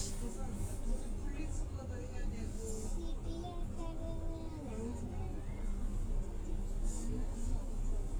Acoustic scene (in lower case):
bus